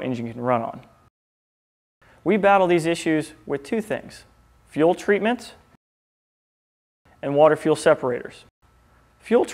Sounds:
Speech

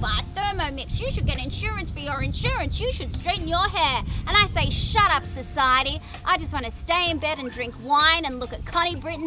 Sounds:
Speech

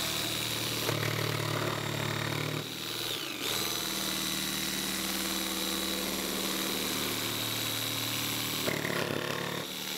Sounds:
inside a small room

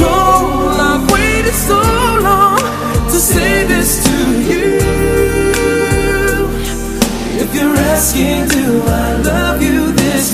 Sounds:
Music, Pop music

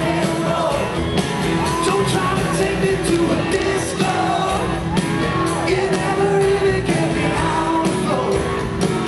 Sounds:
Music, Rock and roll

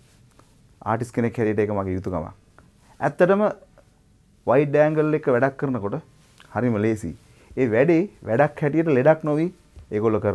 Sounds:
Speech

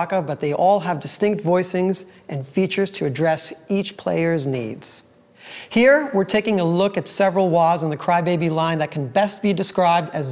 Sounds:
Speech

